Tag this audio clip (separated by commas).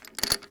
Mechanisms